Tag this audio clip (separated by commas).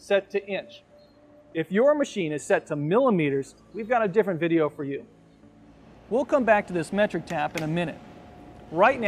Tap, Speech